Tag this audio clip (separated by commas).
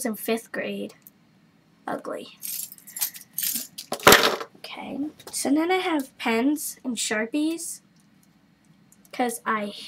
Speech, inside a small room